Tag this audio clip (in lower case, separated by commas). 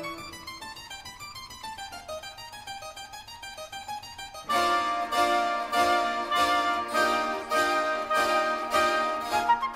music, flute, harpsichord, musical instrument